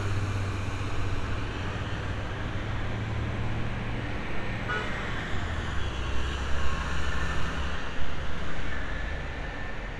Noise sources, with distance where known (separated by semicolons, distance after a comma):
car horn, near